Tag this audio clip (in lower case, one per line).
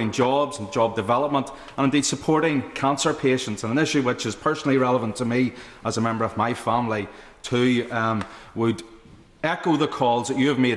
monologue
speech
male speech